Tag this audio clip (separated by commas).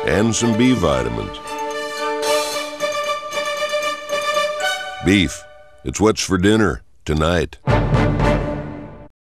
Music, Speech